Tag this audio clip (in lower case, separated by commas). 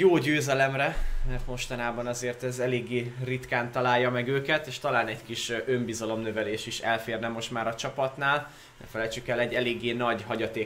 speech